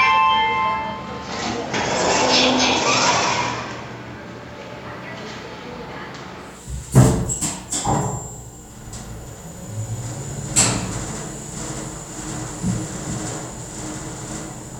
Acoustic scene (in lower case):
elevator